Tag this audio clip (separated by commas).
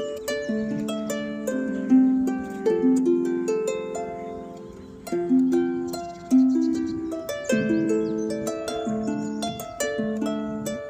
Harp, Music, playing harp